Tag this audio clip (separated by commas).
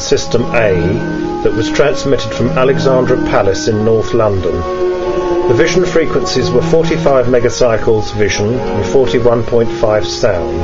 Speech, Music